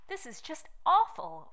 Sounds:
Speech, Female speech, Human voice

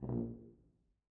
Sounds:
Music, Musical instrument, Brass instrument

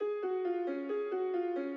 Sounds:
Musical instrument, Music, Piano, Keyboard (musical)

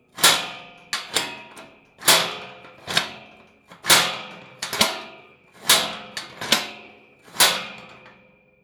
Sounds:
Tools

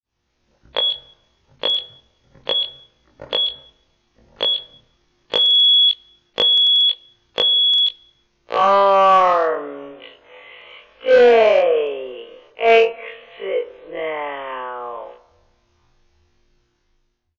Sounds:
Alarm

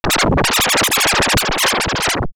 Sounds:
Scratching (performance technique), Music, Musical instrument

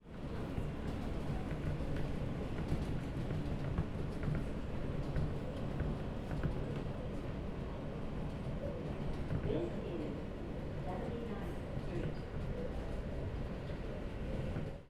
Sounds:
Subway, Vehicle, Rail transport

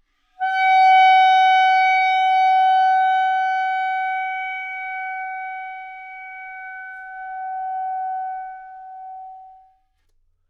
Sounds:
Music, woodwind instrument, Musical instrument

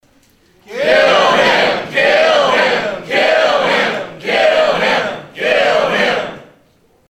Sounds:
Human group actions, Human voice, Singing, Crowd

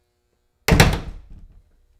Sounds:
Door, Slam, home sounds

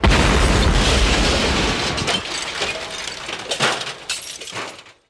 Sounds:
Explosion

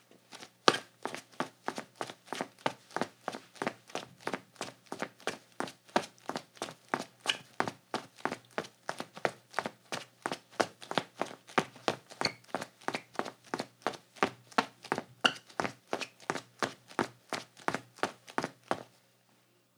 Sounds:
Run

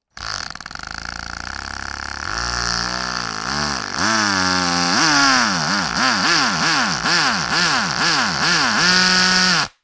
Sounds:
Tools

